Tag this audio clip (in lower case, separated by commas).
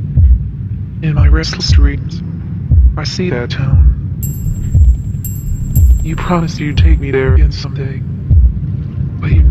speech